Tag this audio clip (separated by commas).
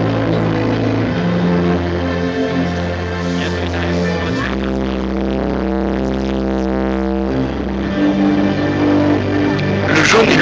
Music, Electronic music, Speech